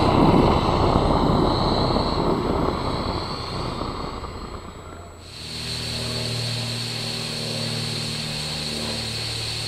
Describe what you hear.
Roaring occurs, then a deep tone sounds and hissing is present